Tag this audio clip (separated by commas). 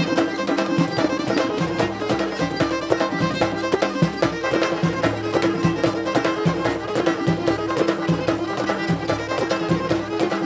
Music